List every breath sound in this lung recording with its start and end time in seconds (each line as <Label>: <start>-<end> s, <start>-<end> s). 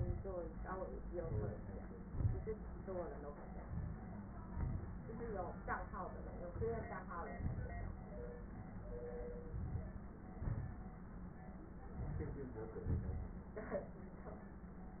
Inhalation: 1.03-2.08 s, 3.64-4.45 s, 6.51-7.33 s, 9.46-10.20 s, 11.78-12.73 s
Exhalation: 2.10-2.86 s, 4.47-5.05 s, 7.35-8.04 s, 10.21-11.10 s, 12.74-13.49 s
Crackles: 2.10-2.86 s, 3.64-4.45 s, 4.47-5.05 s, 7.35-8.04 s, 9.46-10.20 s, 11.78-12.73 s, 12.74-13.49 s